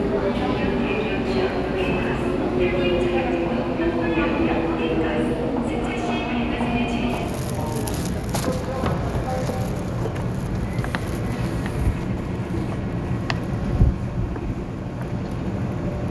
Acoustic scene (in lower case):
subway station